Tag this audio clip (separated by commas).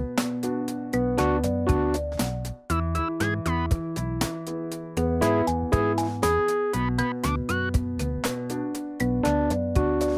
Music